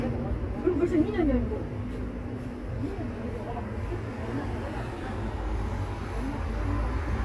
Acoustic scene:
street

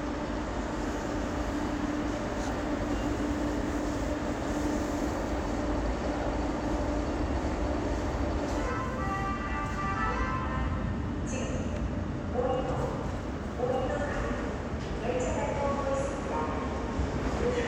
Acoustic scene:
subway station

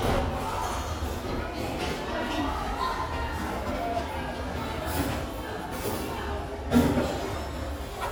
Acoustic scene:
restaurant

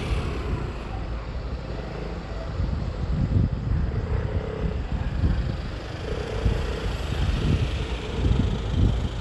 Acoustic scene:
street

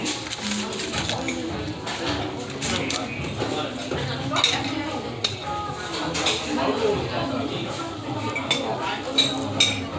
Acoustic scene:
restaurant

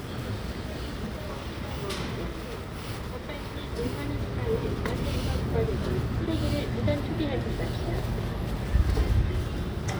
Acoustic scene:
residential area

